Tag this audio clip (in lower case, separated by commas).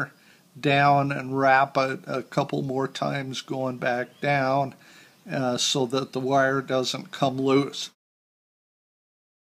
speech, inside a small room